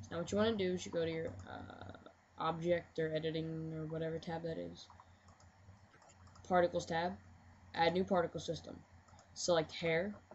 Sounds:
speech

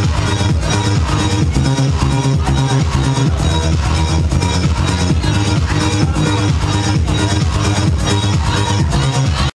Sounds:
music

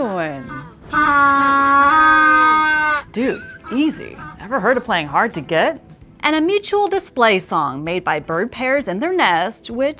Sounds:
penguins braying

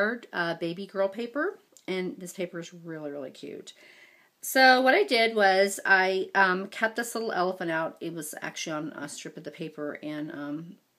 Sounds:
speech

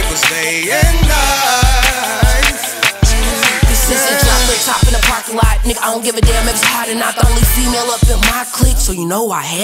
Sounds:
music, funk

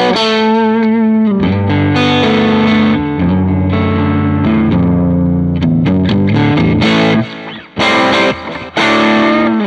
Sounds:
music, electric guitar, bass guitar

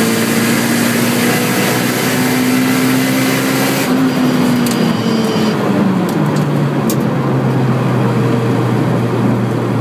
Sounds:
motor vehicle (road), car, vehicle

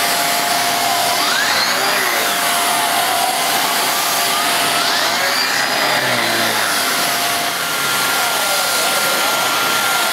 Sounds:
vacuum cleaner cleaning floors

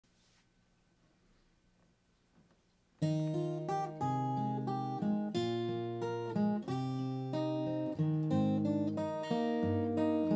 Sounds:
musical instrument, acoustic guitar, plucked string instrument, guitar

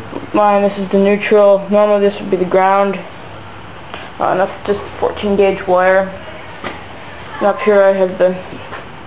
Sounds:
speech

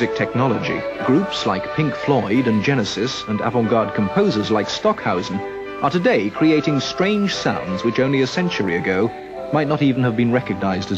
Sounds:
speech, music, tender music

